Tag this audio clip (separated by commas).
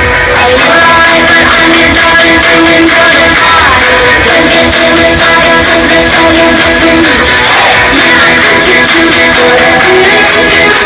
Music, Exciting music